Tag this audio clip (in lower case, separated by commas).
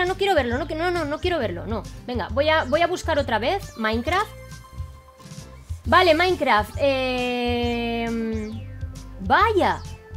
music, speech, female speech